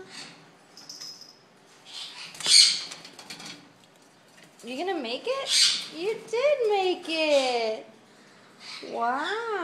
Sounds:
speech, pets, bird

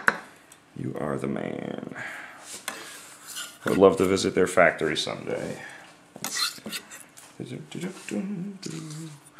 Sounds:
speech

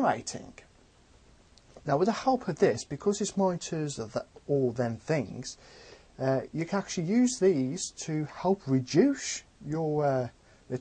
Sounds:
speech

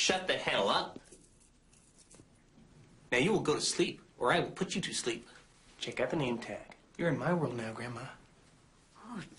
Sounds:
speech

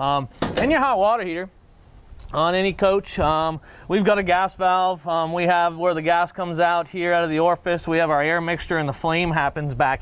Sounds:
speech

